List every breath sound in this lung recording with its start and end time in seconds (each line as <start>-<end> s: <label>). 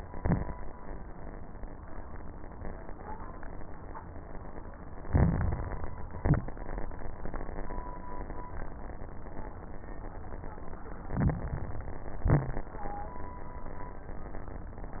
0.00-0.55 s: exhalation
0.00-0.55 s: crackles
5.02-5.93 s: inhalation
5.02-5.93 s: crackles
6.12-6.55 s: exhalation
6.12-6.55 s: crackles
11.00-12.16 s: inhalation
11.00-12.16 s: crackles
12.18-12.73 s: exhalation
12.18-12.73 s: crackles